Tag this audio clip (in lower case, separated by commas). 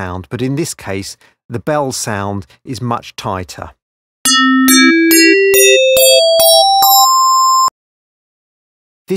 speech, synthesizer, music